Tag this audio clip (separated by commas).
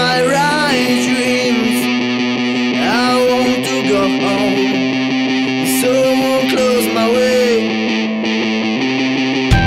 Music